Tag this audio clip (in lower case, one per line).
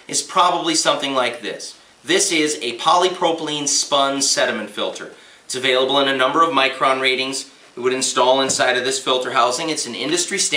speech